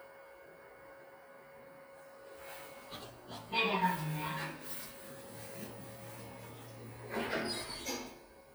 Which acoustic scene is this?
elevator